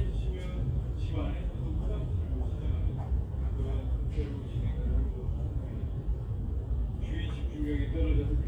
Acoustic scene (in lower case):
crowded indoor space